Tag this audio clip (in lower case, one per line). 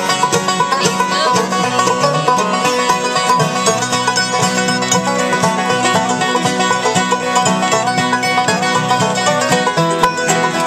music